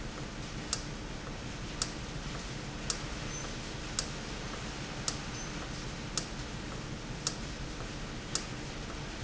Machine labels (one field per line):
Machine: valve